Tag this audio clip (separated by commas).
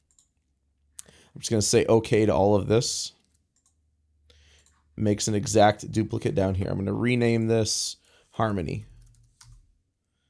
Speech